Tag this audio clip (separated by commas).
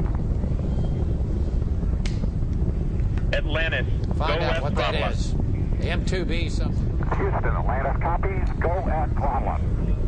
Speech